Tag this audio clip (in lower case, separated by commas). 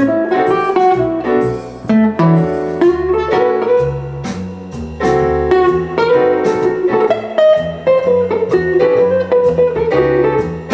plucked string instrument, guitar, musical instrument, jazz, music